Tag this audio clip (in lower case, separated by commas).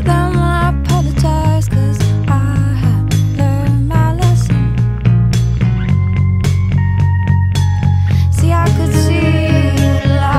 music